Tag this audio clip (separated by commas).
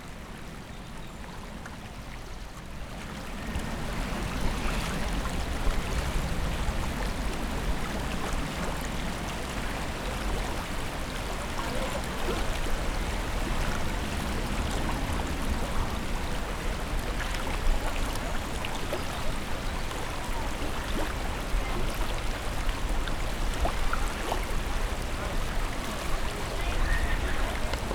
Water, Stream